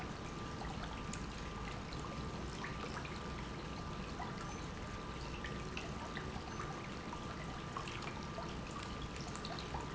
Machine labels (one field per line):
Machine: pump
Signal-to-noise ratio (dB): 0 dB